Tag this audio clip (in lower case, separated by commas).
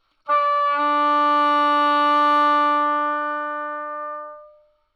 music, wind instrument, musical instrument